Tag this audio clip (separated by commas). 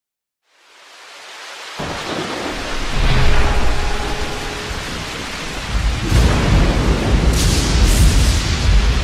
Rain, Thunderstorm, Thunder, Rain on surface